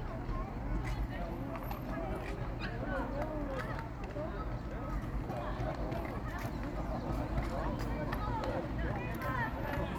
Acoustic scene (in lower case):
park